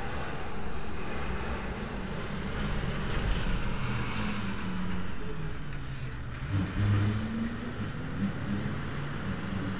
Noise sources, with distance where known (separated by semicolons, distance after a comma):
engine of unclear size, near